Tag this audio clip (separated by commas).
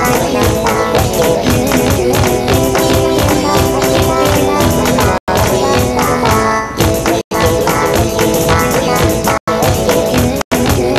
Music, Funny music